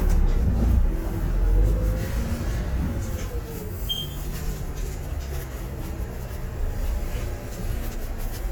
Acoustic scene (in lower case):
bus